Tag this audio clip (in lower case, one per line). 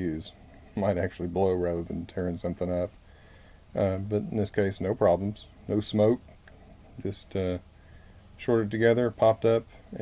speech